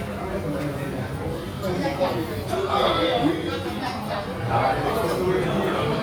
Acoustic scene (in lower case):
restaurant